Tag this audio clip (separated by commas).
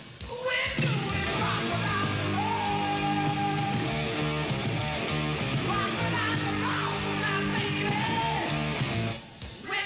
Music